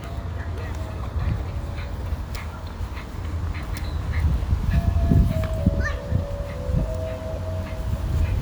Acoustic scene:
residential area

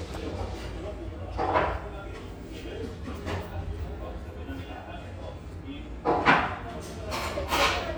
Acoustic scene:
restaurant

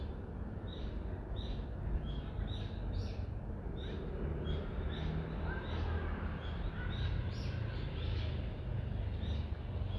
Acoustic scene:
residential area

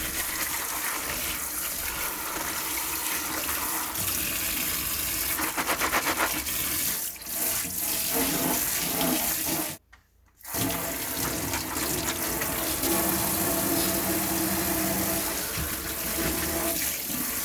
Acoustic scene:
kitchen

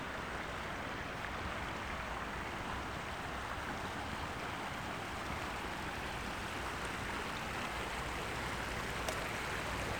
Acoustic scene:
park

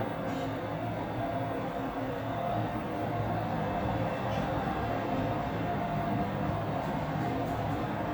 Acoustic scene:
elevator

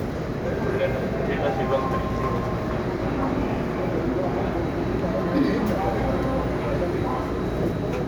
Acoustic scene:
subway train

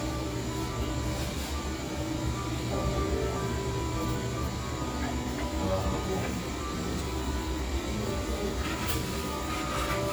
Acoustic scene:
cafe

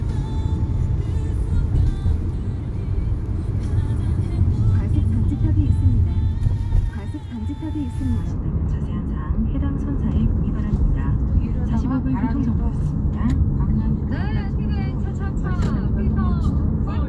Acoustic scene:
car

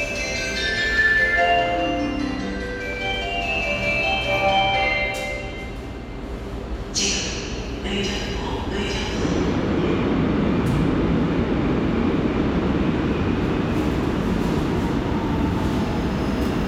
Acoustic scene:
subway station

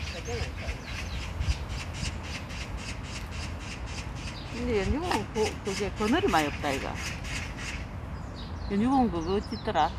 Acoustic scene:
park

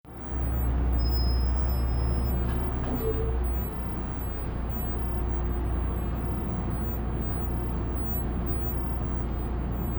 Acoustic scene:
bus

